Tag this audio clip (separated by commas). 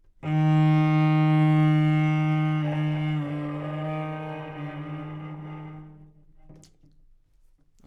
Bowed string instrument, Musical instrument, Music